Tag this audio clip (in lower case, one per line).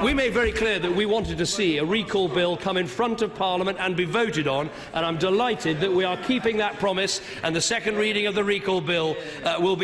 narration
man speaking
speech